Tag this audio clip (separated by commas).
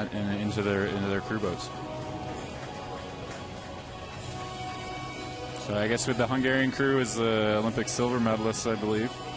Speech, Music